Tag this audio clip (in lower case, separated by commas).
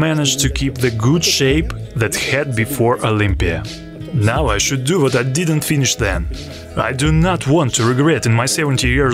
speech, music